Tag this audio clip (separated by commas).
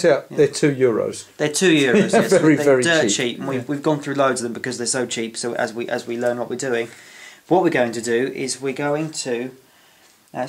Speech